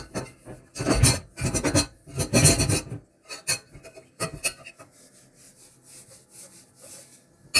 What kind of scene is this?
kitchen